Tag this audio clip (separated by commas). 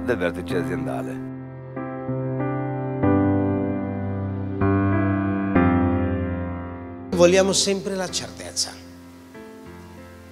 Speech, Music